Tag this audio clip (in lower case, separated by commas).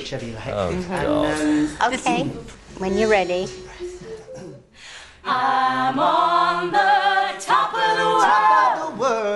speech, a capella